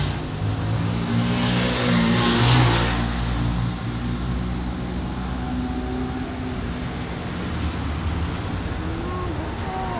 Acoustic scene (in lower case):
street